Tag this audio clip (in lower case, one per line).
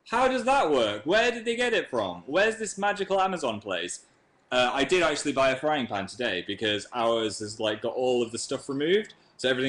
speech